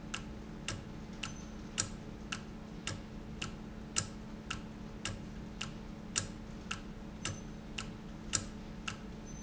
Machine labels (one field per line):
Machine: valve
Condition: normal